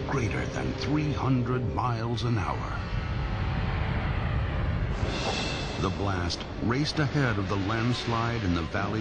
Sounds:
volcano explosion

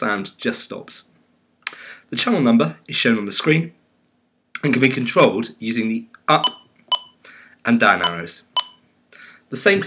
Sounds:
speech

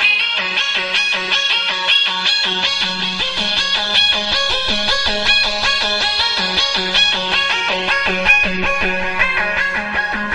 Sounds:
music

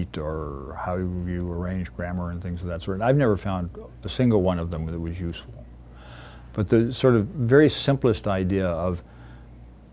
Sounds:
speech

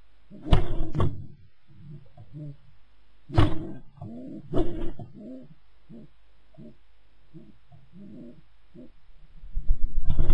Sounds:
inside a small room
bird
pigeon

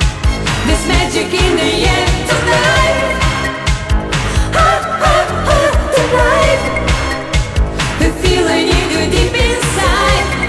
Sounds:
music of asia
music
disco

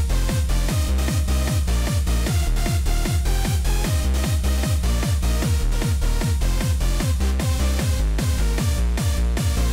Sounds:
techno
electronic music
music

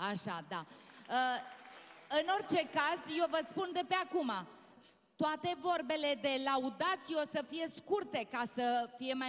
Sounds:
speech

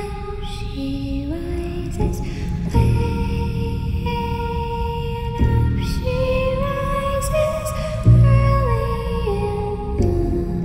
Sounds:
music
lullaby

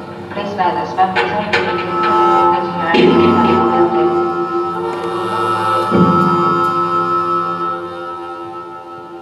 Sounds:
speech
inside a large room or hall
musical instrument
music

